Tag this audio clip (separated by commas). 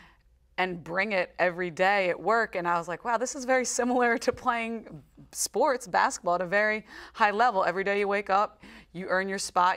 Speech, inside a small room, woman speaking